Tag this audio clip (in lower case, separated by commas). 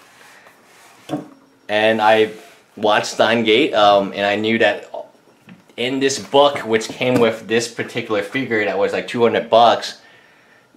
inside a small room, speech